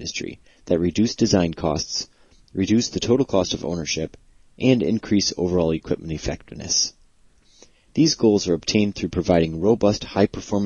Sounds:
Speech

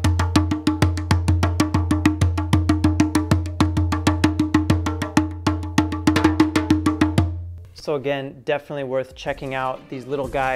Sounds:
playing djembe

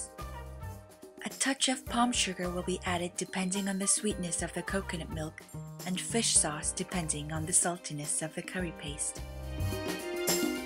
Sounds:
Music, Speech

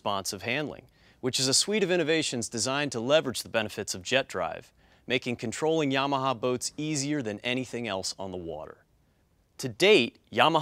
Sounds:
Speech

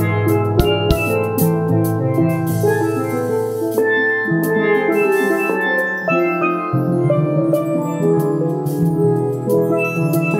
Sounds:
Percussion, Drum, Music, Musical instrument, Steelpan, Drum kit

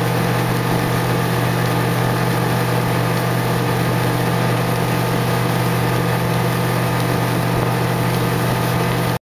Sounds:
Sailboat

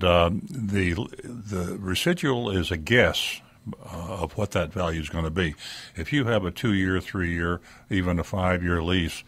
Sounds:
Speech

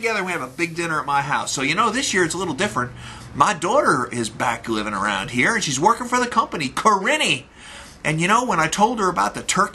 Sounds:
Speech

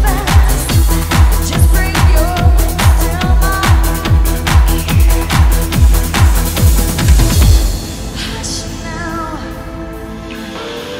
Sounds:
Musical instrument, Drum, Music, Drum kit, playing drum kit

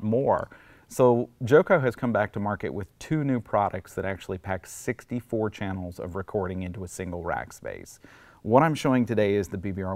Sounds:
Speech

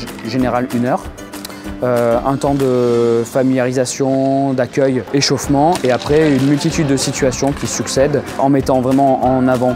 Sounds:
Music, Speech

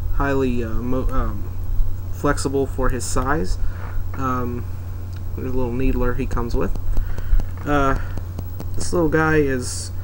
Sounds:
Speech

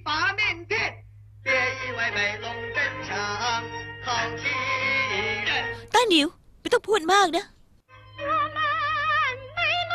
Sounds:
Speech, Music

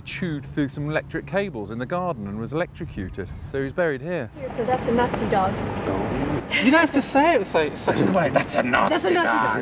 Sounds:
Speech

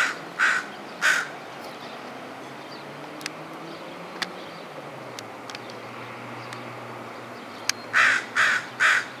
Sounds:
Bird, tweet, bird call

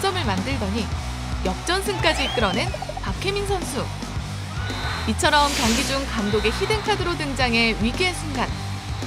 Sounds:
playing volleyball

